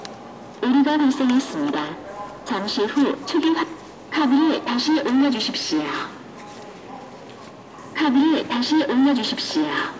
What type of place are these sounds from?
subway station